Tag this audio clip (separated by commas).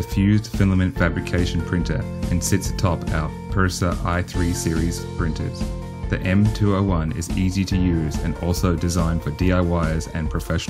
Speech, Music